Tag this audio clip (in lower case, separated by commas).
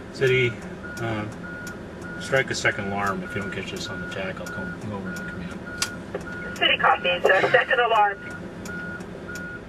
speech